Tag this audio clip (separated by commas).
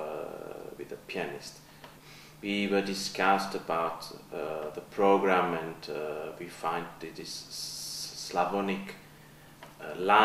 Speech